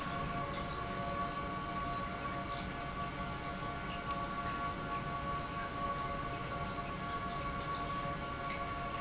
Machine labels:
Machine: pump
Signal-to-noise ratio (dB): -6 dB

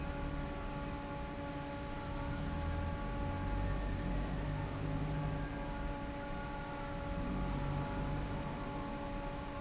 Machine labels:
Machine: fan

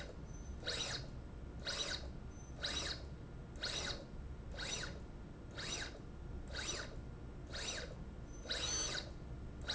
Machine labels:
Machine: slide rail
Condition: abnormal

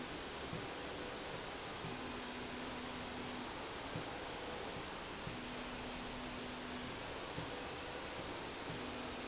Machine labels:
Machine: slide rail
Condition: normal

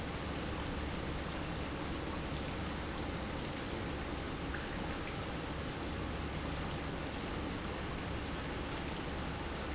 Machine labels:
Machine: pump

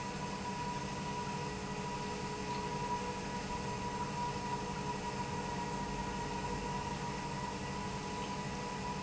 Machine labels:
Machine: pump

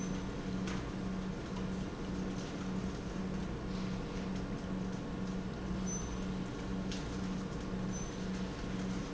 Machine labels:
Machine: pump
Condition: normal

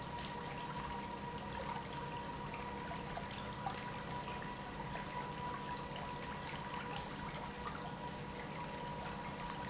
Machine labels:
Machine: pump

